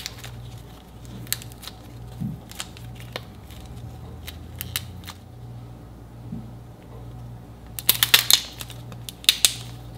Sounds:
ice cracking

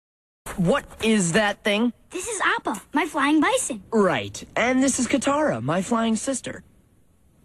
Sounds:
speech

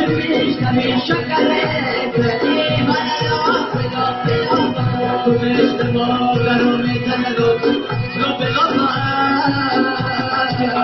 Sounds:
folk music
music

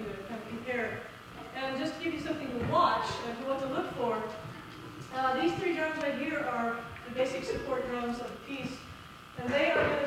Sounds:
speech

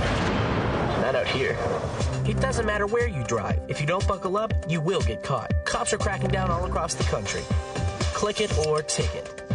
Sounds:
speech
music

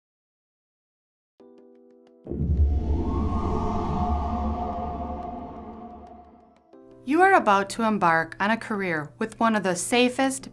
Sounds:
music
speech

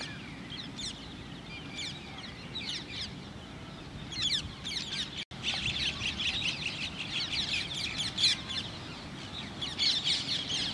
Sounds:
mynah bird singing

